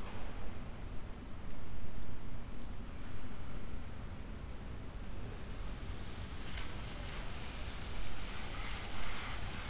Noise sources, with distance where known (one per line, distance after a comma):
engine of unclear size